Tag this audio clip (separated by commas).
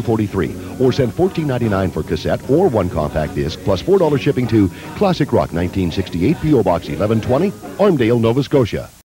Music, Speech, Song